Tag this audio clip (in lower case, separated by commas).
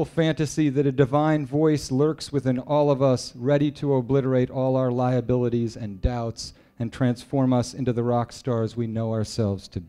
speech